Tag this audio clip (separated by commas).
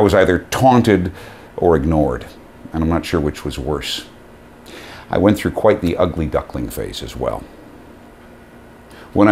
Speech